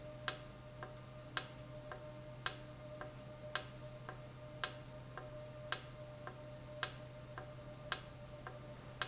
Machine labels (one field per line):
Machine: valve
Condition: normal